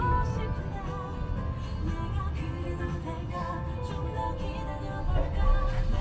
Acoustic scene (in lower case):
car